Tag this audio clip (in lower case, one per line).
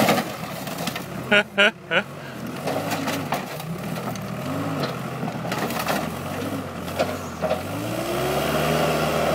vehicle